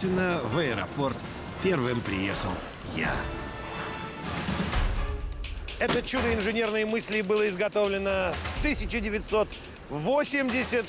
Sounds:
speech, music

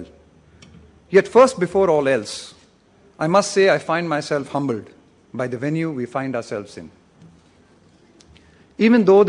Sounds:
man speaking, monologue, speech

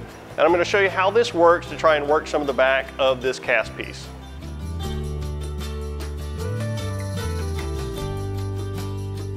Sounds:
music, speech

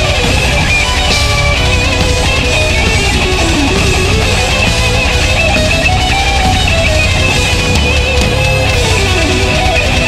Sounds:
heavy metal, music

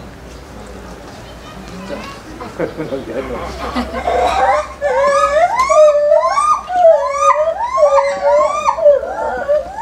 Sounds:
gibbon howling

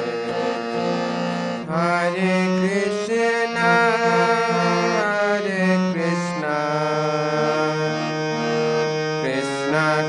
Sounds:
mantra, music

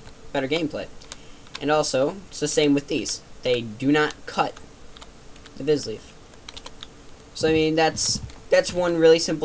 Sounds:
speech, computer keyboard

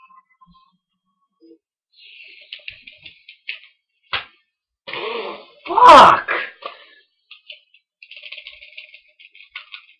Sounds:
speech

